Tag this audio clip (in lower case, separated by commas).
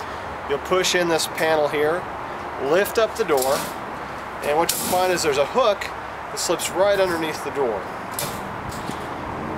vehicle, speech